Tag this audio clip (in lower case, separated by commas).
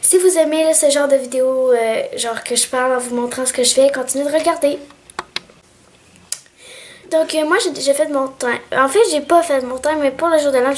speech